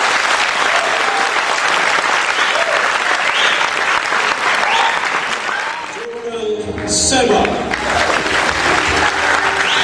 People clapping and cheering and a man talking